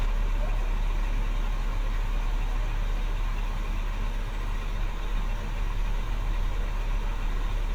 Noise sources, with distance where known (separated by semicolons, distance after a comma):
medium-sounding engine